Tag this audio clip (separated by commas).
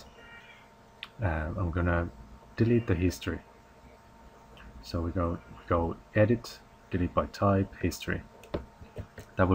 Speech